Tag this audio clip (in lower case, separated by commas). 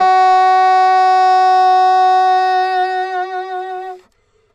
woodwind instrument, musical instrument, music